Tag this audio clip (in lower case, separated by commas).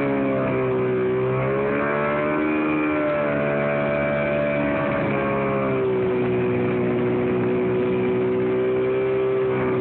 vehicle, speedboat